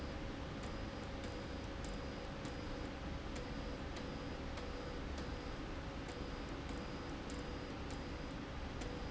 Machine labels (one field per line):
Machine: slide rail